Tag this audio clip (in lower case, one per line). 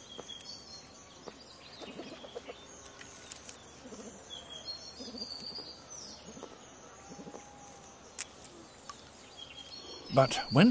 gibbon howling